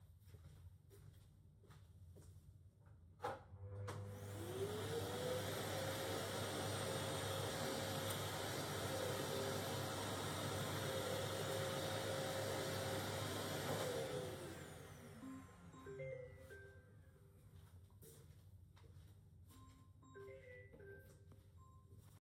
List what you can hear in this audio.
footsteps, vacuum cleaner, phone ringing